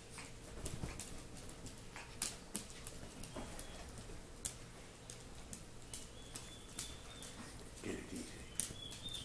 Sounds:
Animal, Speech

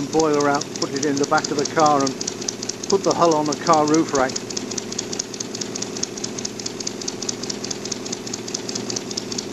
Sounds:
Speech, Engine

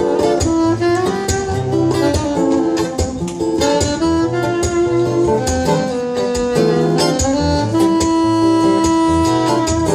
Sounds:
Bass guitar, Music, Guitar, Plucked string instrument, Musical instrument

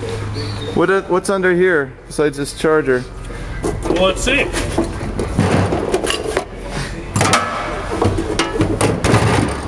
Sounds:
inside a large room or hall, Speech

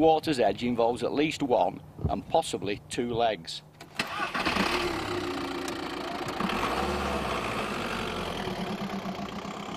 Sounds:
Vehicle, Speech

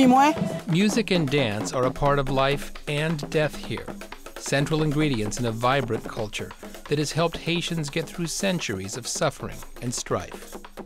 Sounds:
Music, Speech

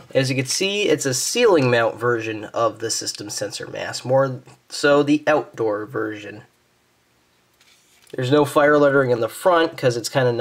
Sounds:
Speech

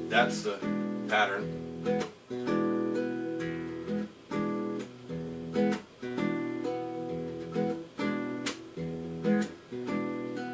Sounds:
Acoustic guitar, Plucked string instrument, Music, Musical instrument, Guitar, Speech

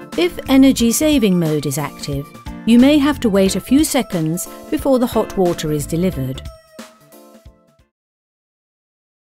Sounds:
Music, Speech

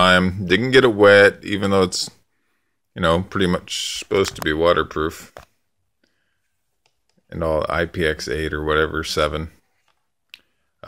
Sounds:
mosquito buzzing

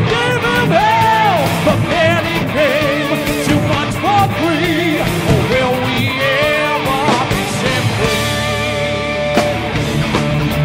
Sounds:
Music

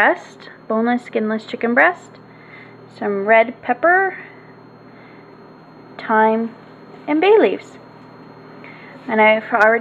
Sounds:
Speech

